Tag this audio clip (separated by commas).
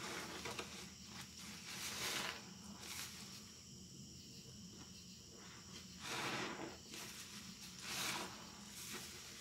squishing water